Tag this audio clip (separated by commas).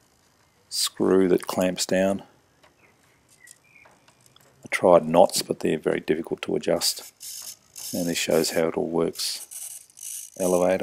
Speech, inside a small room